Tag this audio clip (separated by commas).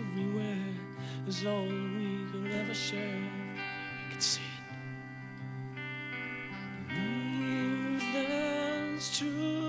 Music